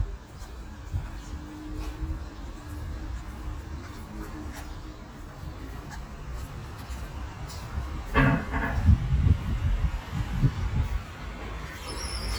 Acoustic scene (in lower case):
residential area